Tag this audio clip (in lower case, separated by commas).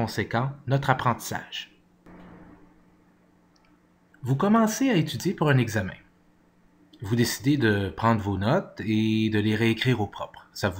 speech